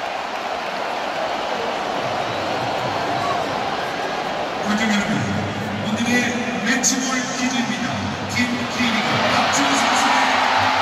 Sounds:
people booing

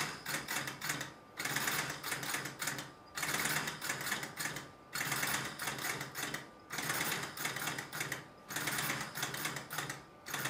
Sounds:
inside a small room

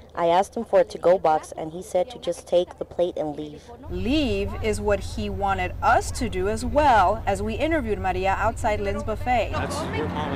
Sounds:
Speech

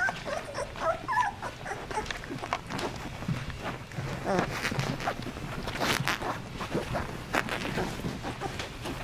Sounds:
Dog, Animal, Domestic animals, canids

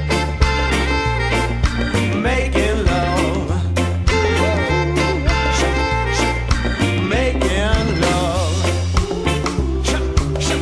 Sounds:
Music, Rock and roll, Jazz

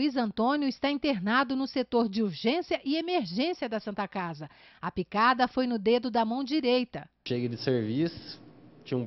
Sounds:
Speech

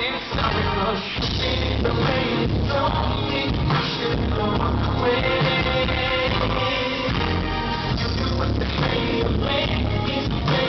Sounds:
Music

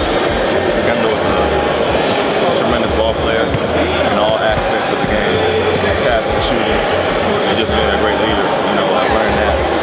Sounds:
Basketball bounce, Speech, Music

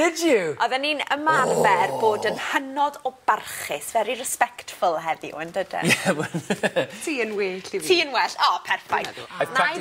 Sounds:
Speech

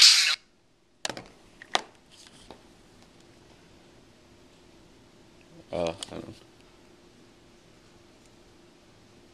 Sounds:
Speech

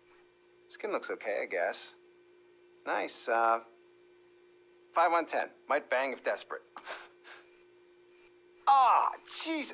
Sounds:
Speech

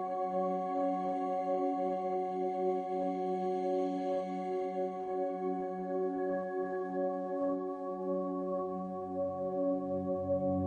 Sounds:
New-age music, Music

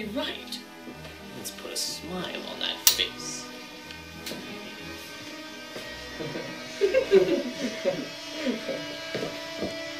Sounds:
Speech, inside a small room, Music

